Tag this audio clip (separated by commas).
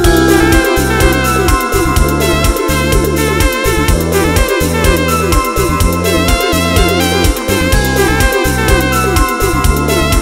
Happy music, Music